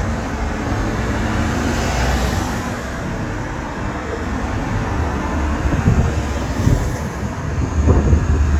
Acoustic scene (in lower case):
street